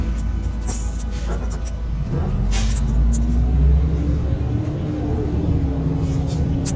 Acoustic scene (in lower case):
bus